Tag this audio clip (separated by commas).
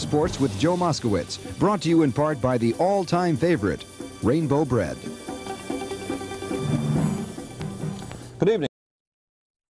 Music, Speech